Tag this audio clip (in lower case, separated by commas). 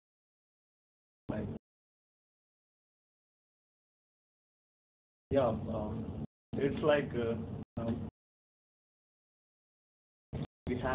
monologue, speech, man speaking